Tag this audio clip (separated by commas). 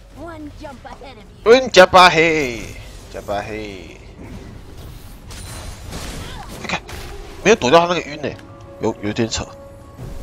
Music, Speech